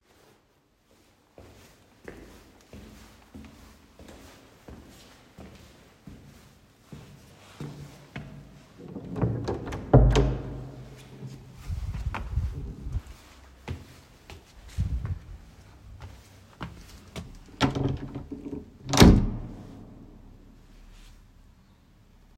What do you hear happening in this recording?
I walked down the hallway to the door. I opened the door then closed it again.